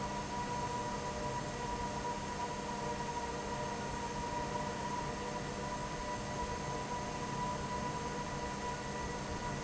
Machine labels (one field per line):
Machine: fan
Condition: normal